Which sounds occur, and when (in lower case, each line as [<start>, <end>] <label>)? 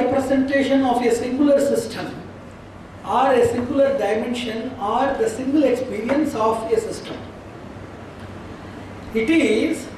[0.01, 9.95] background noise
[0.03, 2.19] man speaking
[3.06, 7.20] man speaking
[9.14, 9.95] man speaking